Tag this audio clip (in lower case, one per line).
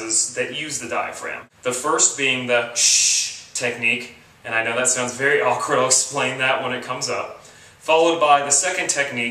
speech